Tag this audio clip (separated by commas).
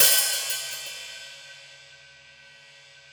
Percussion, Music, Cymbal, Musical instrument, Hi-hat